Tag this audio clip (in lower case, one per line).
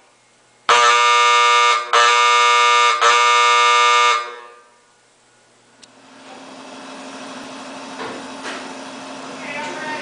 speech
alarm
fire alarm